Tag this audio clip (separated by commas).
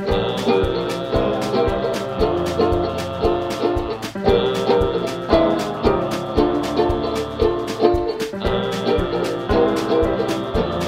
Music